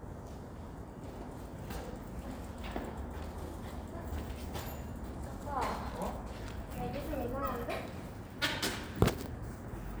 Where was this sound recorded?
in a residential area